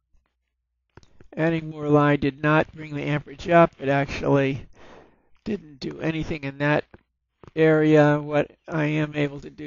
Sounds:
speech

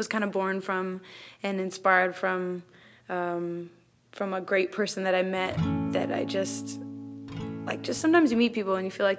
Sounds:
speech
music

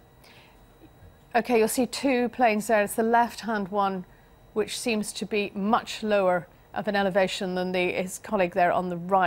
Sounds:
speech

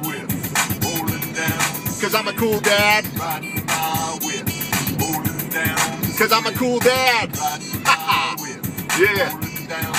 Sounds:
rapping

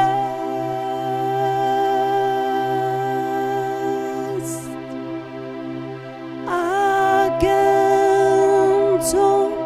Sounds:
music
musical instrument

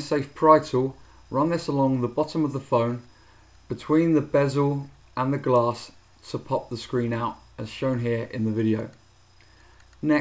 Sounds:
speech

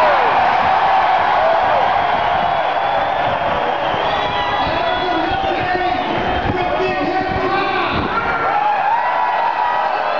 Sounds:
speech

